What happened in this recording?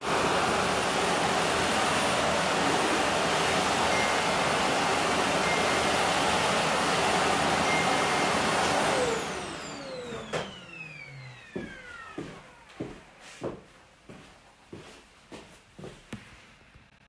I started vacuuming then 3 notifications came each one after the other. I turned of the vacuum cleaner and walked towards the phone.